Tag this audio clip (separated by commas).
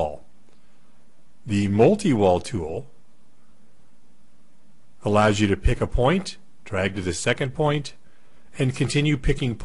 Speech